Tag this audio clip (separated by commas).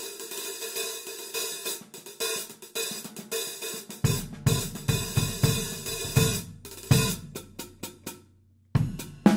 Music